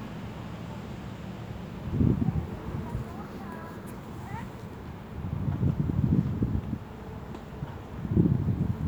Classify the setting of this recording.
residential area